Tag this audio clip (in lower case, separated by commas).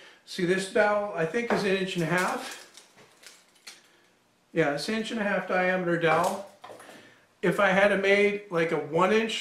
inside a small room, speech, tools